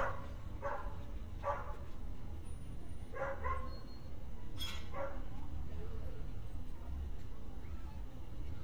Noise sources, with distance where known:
dog barking or whining

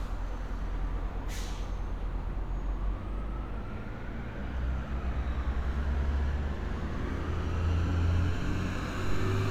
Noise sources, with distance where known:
large-sounding engine
siren, far

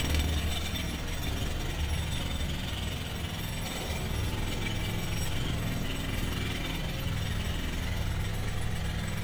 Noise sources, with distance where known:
jackhammer

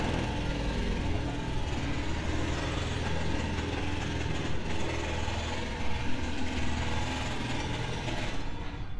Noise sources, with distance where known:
jackhammer, near

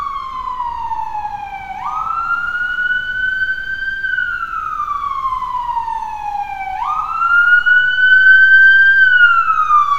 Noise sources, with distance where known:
siren, near

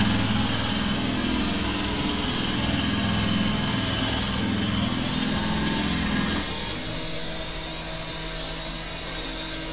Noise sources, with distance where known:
unidentified impact machinery
small or medium rotating saw

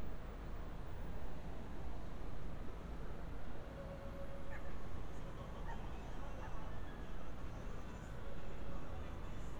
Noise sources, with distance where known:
dog barking or whining, far

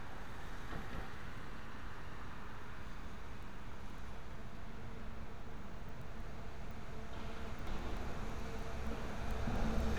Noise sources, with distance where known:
background noise

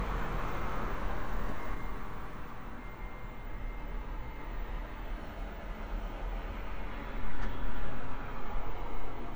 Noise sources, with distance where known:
medium-sounding engine

